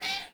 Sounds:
cat, domestic animals, meow, animal

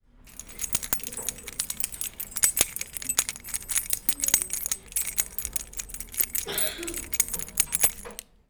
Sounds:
home sounds, keys jangling

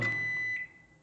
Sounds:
microwave oven, domestic sounds

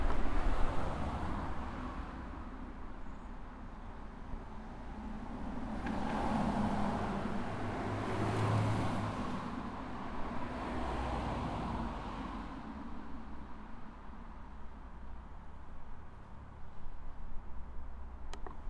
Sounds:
vehicle, motor vehicle (road), car, engine, car passing by, traffic noise

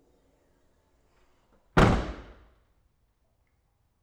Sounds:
motor vehicle (road), door, domestic sounds, slam, vehicle, car

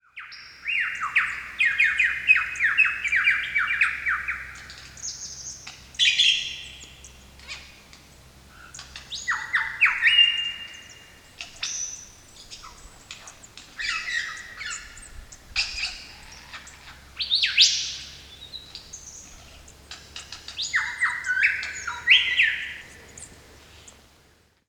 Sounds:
animal, wild animals, bird call, bird

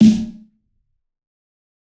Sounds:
snare drum, drum, percussion, musical instrument, music

